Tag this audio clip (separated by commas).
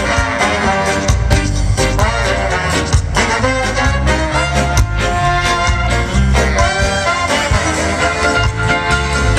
Music, Orchestra